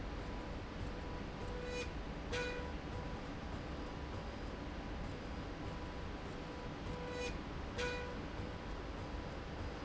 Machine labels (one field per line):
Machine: slide rail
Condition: normal